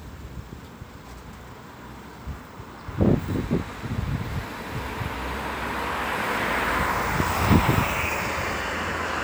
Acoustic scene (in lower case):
street